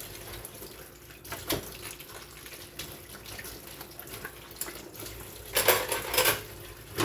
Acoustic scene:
kitchen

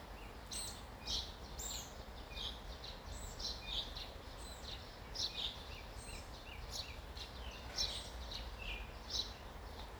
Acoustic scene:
park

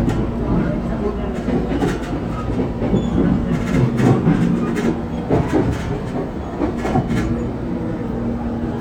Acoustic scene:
subway train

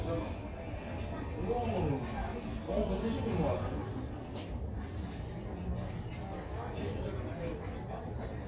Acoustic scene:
crowded indoor space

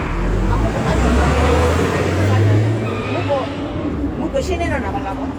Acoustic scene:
bus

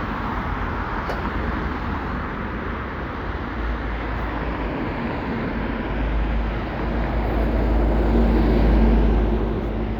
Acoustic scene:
street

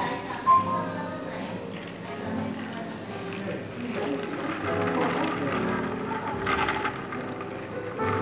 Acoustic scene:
cafe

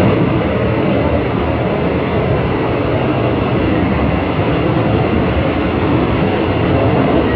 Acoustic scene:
subway train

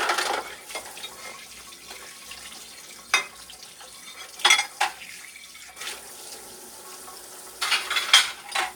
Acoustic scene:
kitchen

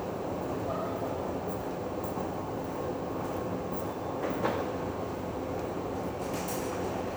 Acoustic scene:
subway station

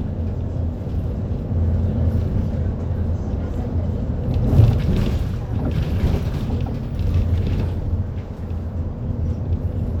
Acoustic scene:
bus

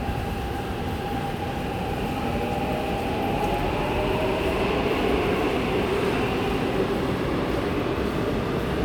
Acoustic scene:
subway station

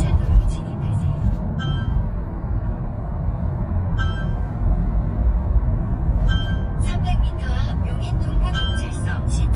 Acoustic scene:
car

